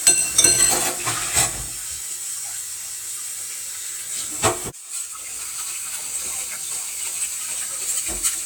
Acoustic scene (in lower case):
kitchen